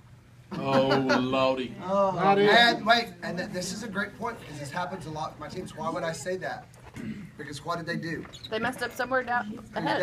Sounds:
Speech

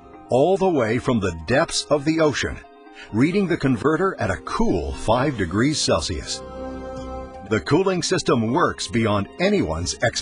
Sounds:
Speech, Music

